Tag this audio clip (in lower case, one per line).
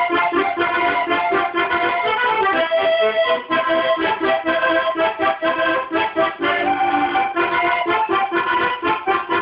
music
musical instrument